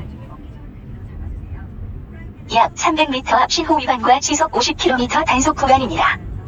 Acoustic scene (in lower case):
car